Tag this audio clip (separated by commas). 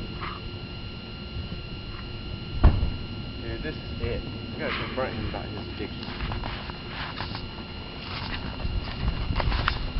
Speech